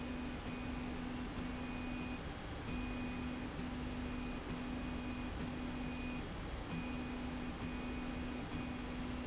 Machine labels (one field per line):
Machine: slide rail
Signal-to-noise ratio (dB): 0 dB